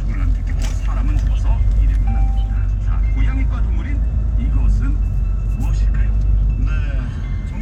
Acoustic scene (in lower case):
car